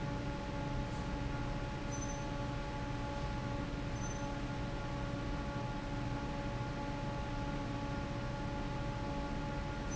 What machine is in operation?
fan